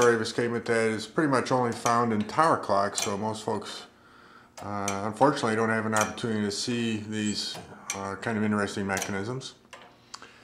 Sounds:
tick, speech, tick-tock

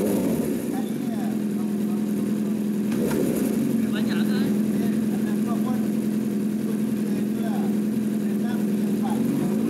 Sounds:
vehicle, motorcycle, speech

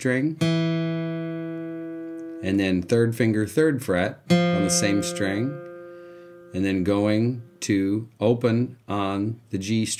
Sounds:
guitar, musical instrument, music, plucked string instrument, speech, acoustic guitar

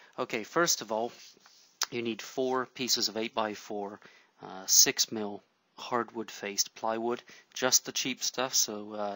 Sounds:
speech

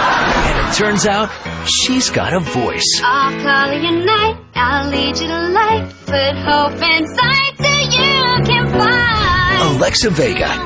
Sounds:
speech, music

